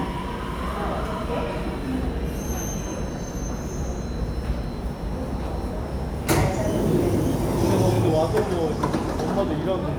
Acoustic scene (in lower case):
subway station